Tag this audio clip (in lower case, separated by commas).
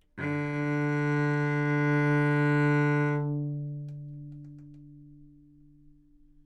bowed string instrument, music, musical instrument